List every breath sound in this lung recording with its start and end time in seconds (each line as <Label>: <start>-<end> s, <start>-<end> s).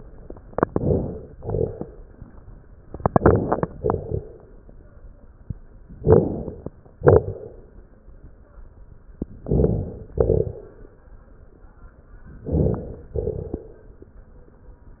Inhalation: 0.53-1.33 s, 2.90-3.70 s, 6.00-6.79 s, 9.41-10.11 s, 12.39-13.11 s
Exhalation: 1.35-2.15 s, 3.78-4.57 s, 6.98-7.78 s, 10.15-11.03 s, 13.17-14.00 s
Crackles: 0.53-1.33 s, 1.35-2.15 s, 2.90-3.70 s, 3.78-4.57 s, 6.00-6.79 s, 6.98-7.78 s, 9.41-10.11 s, 10.15-11.03 s, 12.39-13.11 s, 13.17-14.00 s